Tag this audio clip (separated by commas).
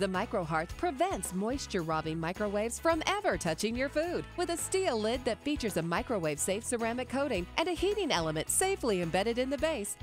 Speech, Music